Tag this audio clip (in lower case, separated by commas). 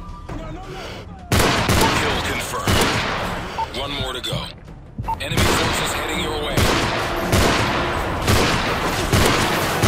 speech